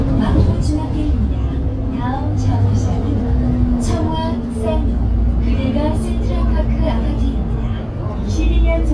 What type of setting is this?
bus